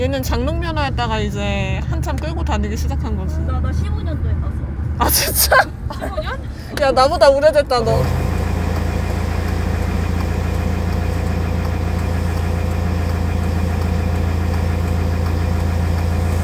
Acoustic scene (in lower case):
car